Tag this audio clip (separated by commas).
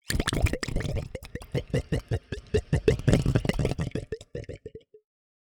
Gurgling, Water